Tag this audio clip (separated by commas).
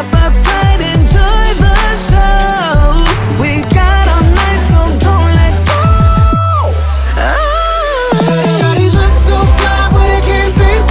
Music